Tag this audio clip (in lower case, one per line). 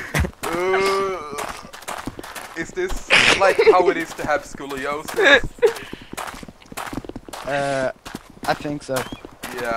speech
walk